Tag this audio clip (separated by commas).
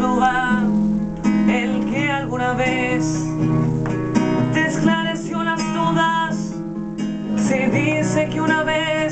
Music